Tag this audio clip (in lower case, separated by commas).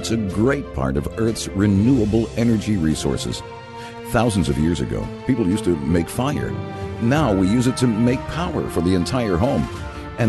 speech, music